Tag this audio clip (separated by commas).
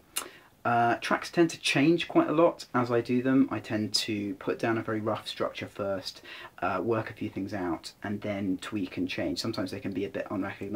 Speech